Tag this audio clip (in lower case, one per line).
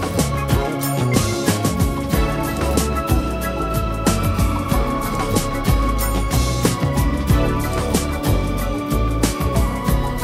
music